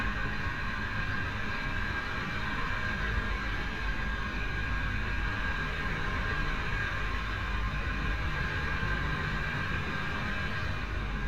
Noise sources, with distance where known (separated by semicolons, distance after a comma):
engine of unclear size, near